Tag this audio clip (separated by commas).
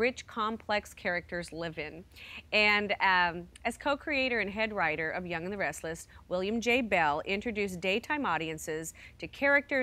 Speech